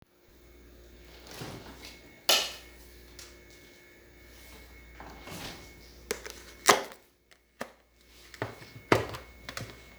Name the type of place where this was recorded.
kitchen